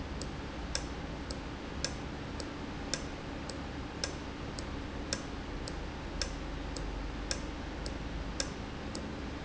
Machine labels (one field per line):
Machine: valve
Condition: normal